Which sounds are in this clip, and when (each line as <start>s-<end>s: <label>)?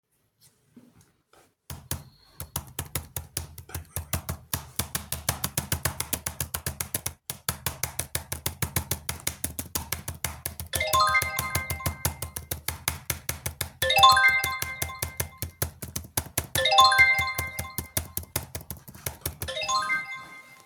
1.6s-19.6s: keyboard typing
10.7s-12.3s: phone ringing
13.8s-15.5s: phone ringing
16.5s-18.2s: phone ringing
19.4s-20.7s: phone ringing